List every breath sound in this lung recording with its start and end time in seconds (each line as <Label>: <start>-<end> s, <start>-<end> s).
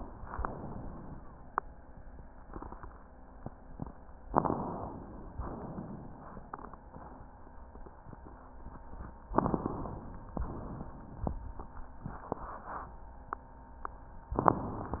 Inhalation: 0.00-1.22 s, 4.27-5.41 s, 9.34-10.34 s
Exhalation: 5.41-6.41 s, 10.34-11.31 s